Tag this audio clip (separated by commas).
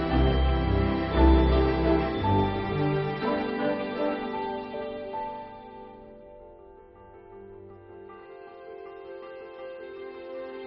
Music